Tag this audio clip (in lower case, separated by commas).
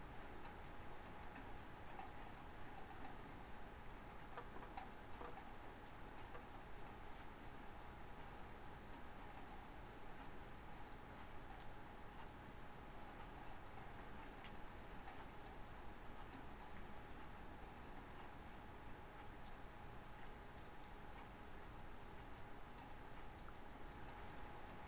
rain, water